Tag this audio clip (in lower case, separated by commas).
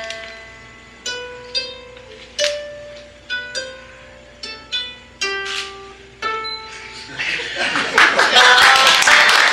pizzicato, harp